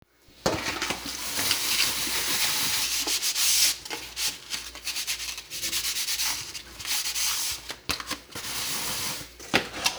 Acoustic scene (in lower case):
kitchen